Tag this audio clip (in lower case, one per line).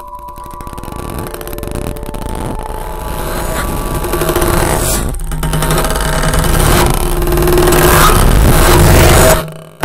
sound effect